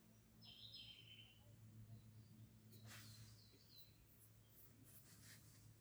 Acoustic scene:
park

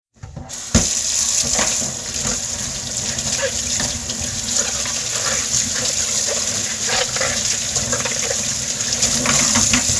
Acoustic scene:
kitchen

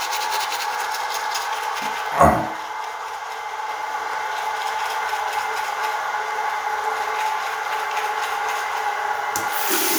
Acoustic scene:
restroom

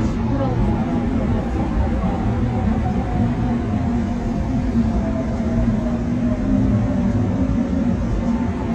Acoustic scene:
subway train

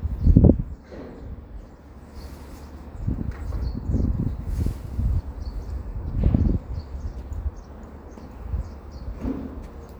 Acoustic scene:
residential area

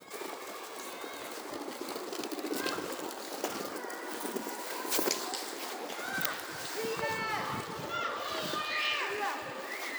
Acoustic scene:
residential area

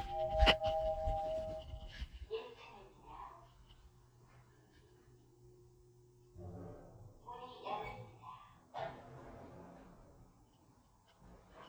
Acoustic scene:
elevator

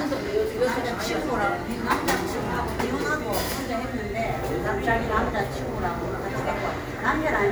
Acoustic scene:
cafe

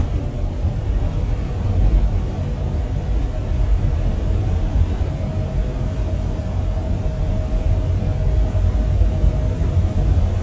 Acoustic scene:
bus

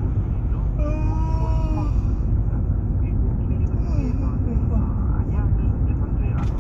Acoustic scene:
car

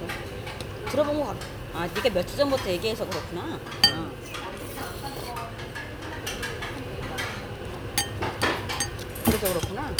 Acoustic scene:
restaurant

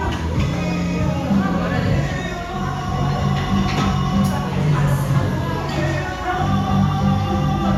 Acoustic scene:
cafe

